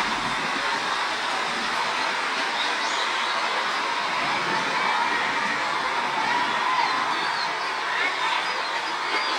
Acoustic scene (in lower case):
park